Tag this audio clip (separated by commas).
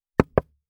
Door, Knock, home sounds